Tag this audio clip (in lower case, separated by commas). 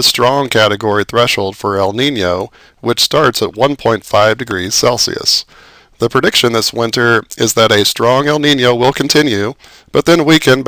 speech